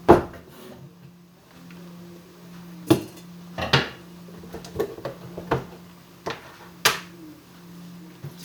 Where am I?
in a kitchen